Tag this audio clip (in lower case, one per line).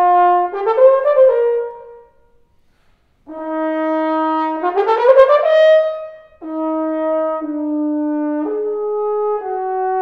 playing french horn